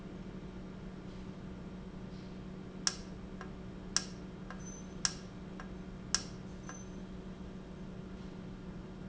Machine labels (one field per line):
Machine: valve